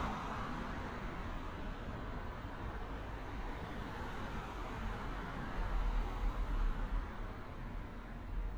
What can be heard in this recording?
medium-sounding engine